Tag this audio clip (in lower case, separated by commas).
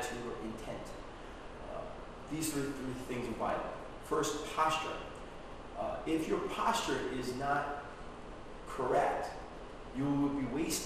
speech